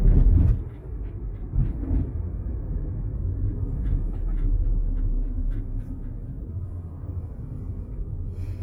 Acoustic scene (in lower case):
car